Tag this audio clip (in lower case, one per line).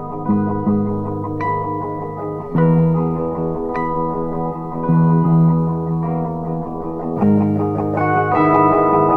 music
bass guitar
musical instrument
plucked string instrument
guitar